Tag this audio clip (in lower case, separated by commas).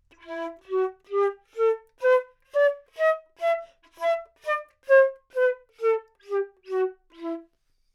woodwind instrument, music, musical instrument